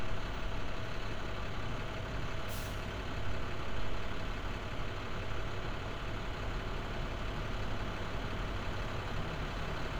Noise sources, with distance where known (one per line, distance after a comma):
large-sounding engine, near